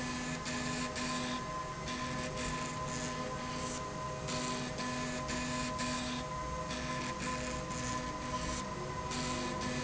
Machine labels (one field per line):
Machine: slide rail